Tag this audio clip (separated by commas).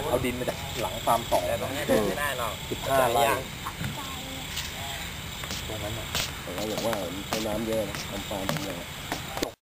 Speech